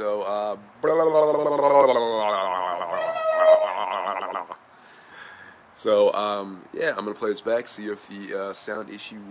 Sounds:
speech

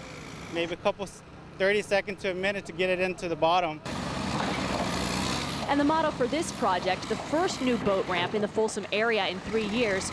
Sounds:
speech, water vehicle, vehicle

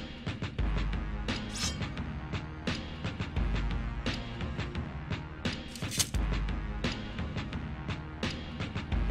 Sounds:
music

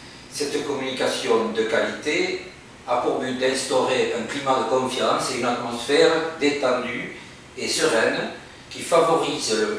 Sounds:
speech

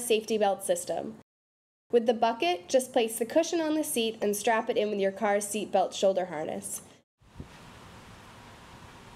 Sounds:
speech

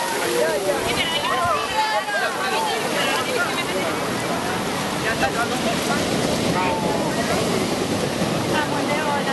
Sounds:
ocean, speech, surf

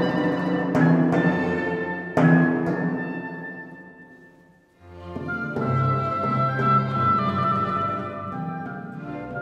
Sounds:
playing tympani

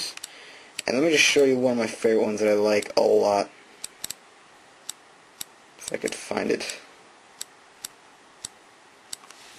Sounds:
speech

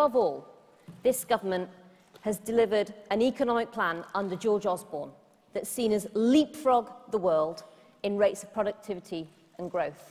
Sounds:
woman speaking, speech, monologue

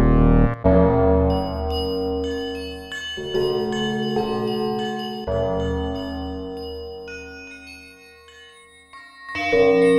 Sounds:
music, musical instrument, synthesizer

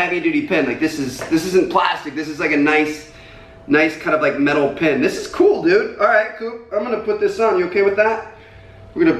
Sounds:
speech

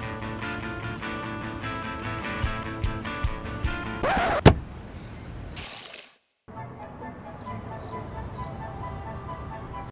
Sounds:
music

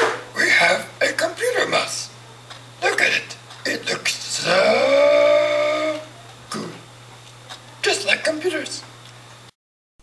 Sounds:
speech

